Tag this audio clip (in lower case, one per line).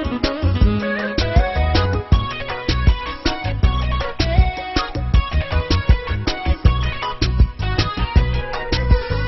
music